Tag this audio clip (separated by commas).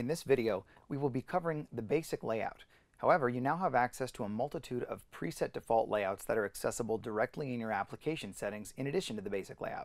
Speech